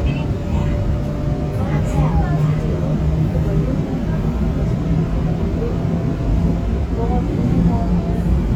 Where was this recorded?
on a subway train